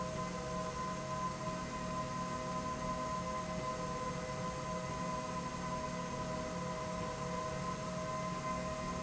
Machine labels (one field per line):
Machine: slide rail